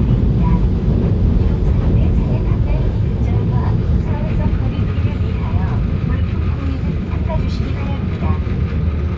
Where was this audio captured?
on a subway train